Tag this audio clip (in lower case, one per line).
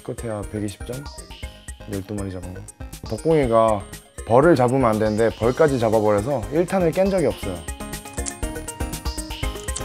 speech
music